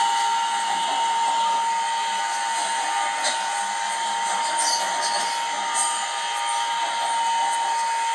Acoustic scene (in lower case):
subway train